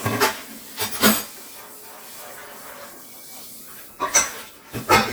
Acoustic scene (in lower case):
kitchen